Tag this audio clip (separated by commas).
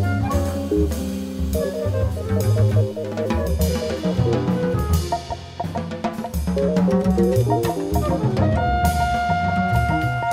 Wood block, Music